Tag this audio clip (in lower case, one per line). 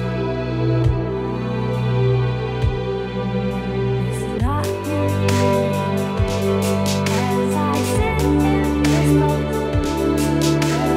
electronic music
music